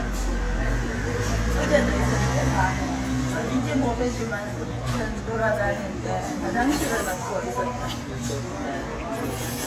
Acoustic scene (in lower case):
restaurant